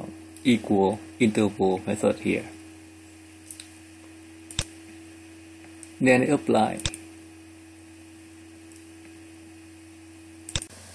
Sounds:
Speech

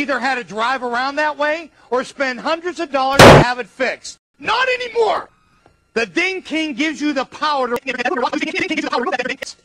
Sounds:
Speech

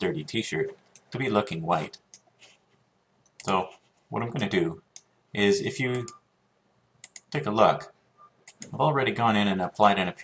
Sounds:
Speech

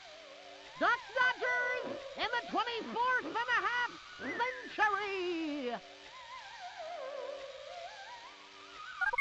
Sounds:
Duck, Speech, Music

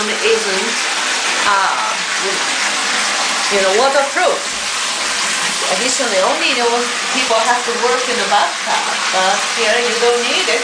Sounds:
Speech

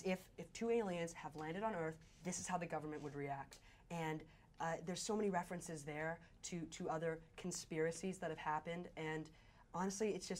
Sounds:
inside a small room, Speech

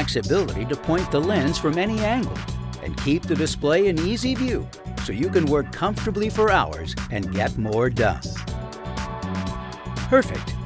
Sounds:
Music, Speech

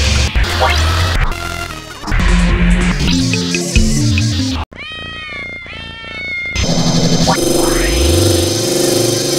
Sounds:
Music

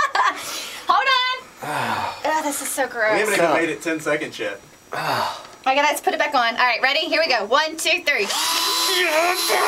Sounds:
Speech

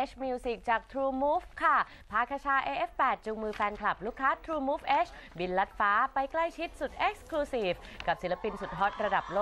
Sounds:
Speech

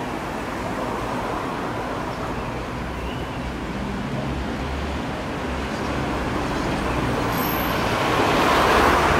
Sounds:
Train, Rail transport, Railroad car, Vehicle

